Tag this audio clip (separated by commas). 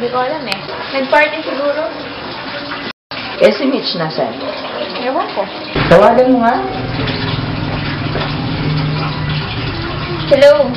Speech, outside, urban or man-made